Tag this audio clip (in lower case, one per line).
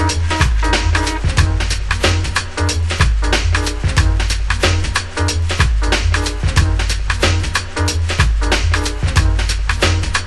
music